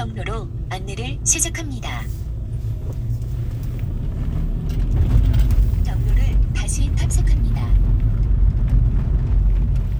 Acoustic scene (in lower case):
car